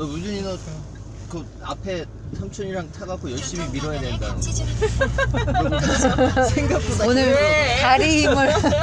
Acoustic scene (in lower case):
car